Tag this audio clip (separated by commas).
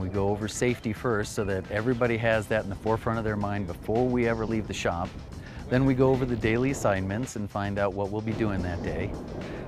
Music, Speech